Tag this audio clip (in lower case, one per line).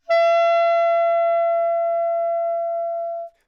woodwind instrument
musical instrument
music